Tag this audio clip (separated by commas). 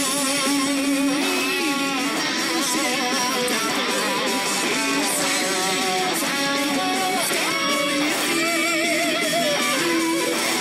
Music, Plucked string instrument, Musical instrument, Strum, Guitar